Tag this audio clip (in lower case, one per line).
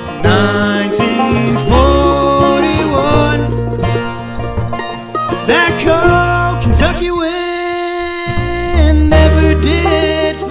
music